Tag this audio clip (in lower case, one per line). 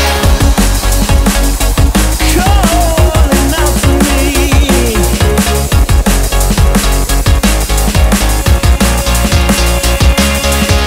drum and bass